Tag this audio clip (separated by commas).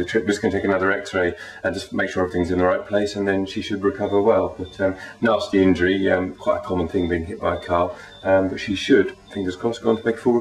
Speech